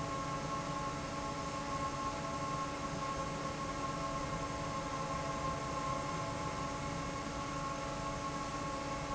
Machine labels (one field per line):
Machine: fan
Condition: normal